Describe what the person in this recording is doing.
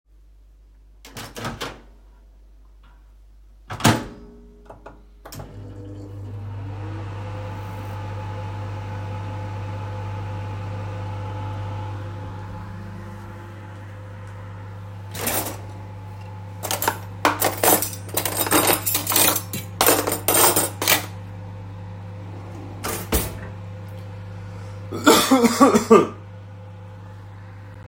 I opened and closed the microwave and then switched it on .Then I opened the drawer took the cutlery out and then closed the drawer , finally I coughed while the microwave was still on